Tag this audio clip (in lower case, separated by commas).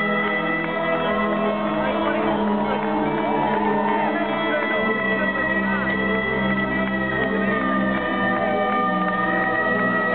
harmonica, wind instrument